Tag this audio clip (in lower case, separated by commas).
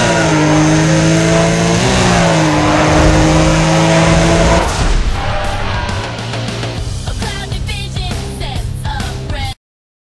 vehicle, music, motor vehicle (road), car